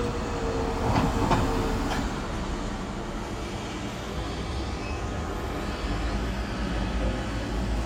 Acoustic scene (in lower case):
residential area